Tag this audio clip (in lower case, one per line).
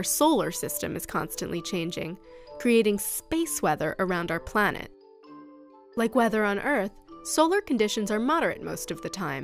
speech
music